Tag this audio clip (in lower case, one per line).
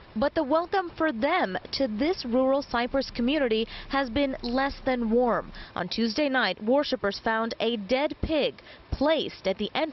speech